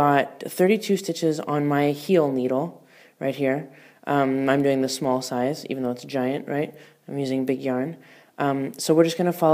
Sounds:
Speech

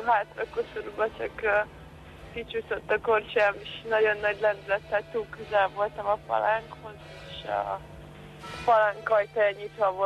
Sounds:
Music, Speech

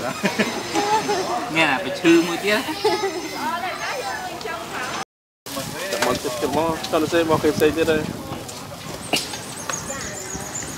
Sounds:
Animal, outside, urban or man-made, Speech

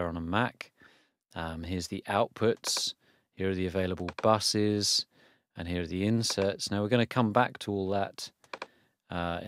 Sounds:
Speech

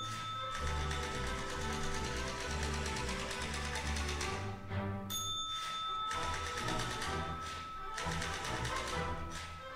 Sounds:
typing on typewriter

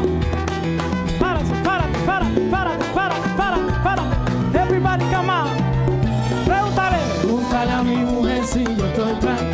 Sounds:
Salsa music, Maraca, Singing, Music

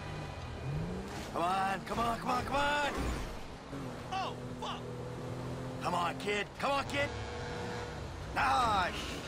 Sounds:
Vehicle, Speech

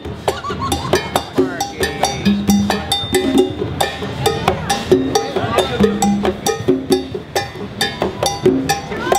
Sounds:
Wood block, Speech, Music

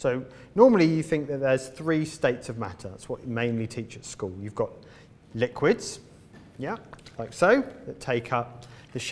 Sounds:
Speech

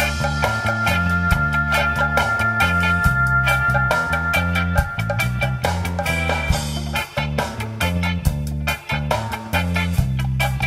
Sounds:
Music

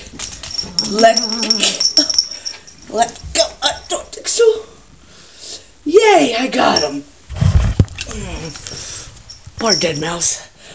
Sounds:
Animal, Speech

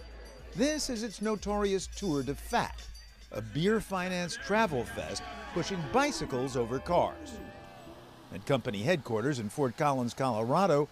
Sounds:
Speech, Music

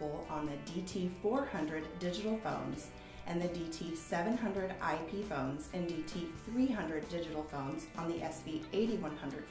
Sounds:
Music, Speech

